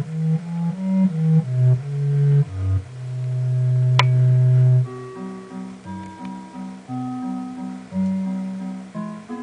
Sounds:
music

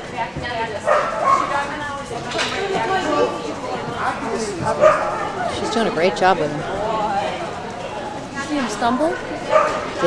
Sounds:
bow-wow, speech

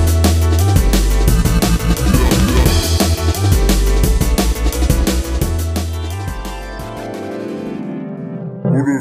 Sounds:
music, speech

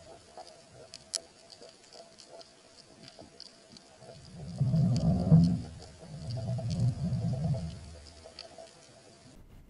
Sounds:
outside, rural or natural

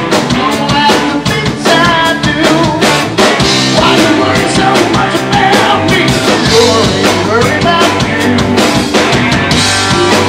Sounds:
roll, music, rock and roll

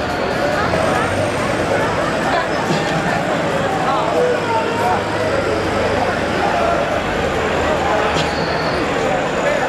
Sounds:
heavy engine (low frequency), speech, vehicle, idling

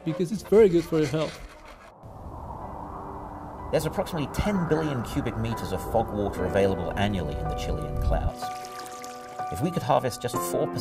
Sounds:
raining

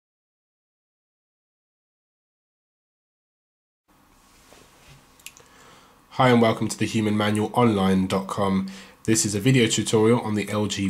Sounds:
silence, inside a small room, speech

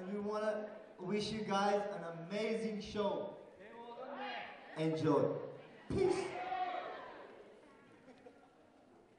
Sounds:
male speech, speech

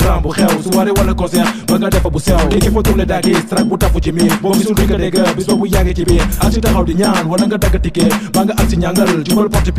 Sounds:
rhythm and blues, music, blues

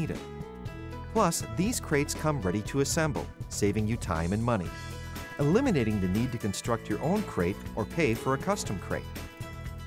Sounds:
speech, music

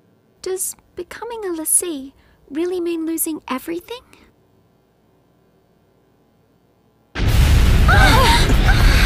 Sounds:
boom, music, speech

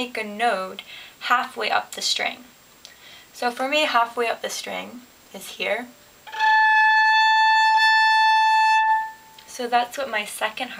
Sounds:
music, fiddle, musical instrument, speech

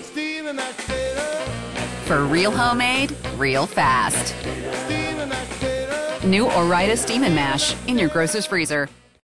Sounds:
speech, music

